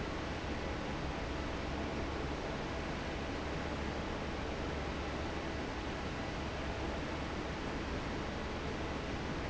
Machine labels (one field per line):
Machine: fan